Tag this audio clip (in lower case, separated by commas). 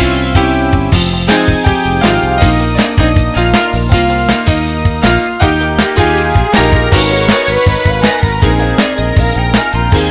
music